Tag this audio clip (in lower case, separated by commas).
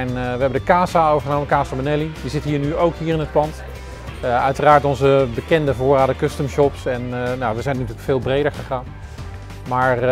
musical instrument, electric guitar, music, speech, plucked string instrument, guitar